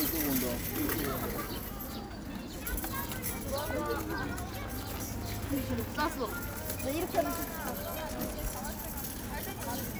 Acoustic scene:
park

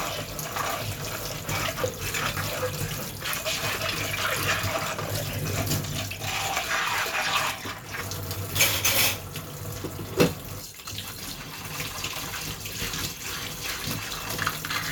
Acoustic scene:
kitchen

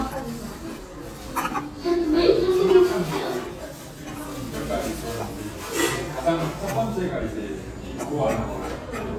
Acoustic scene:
cafe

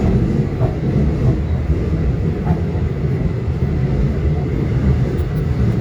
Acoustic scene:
subway train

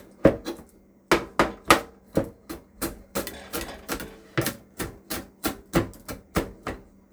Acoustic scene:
kitchen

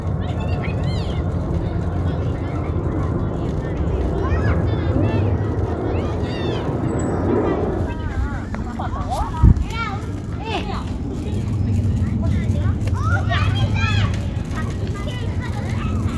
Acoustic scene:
residential area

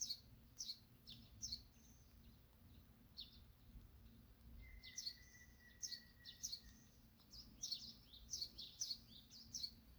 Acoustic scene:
park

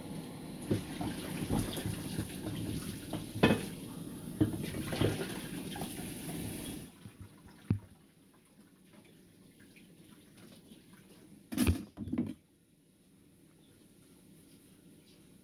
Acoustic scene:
kitchen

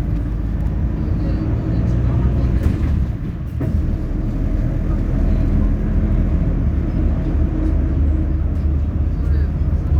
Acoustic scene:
bus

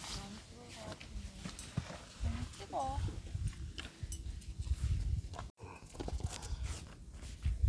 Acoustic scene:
park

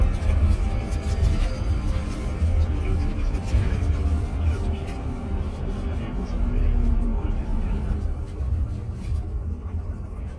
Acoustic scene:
bus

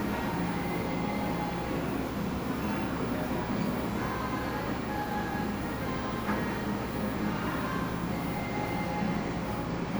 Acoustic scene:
cafe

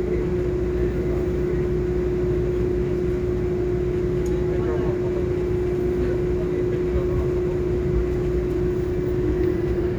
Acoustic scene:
subway train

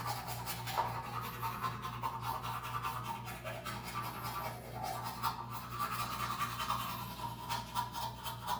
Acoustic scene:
restroom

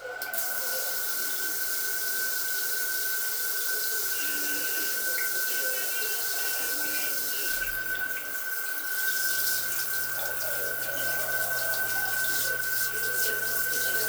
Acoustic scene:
restroom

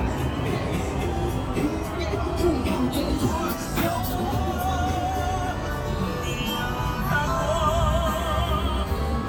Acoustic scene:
street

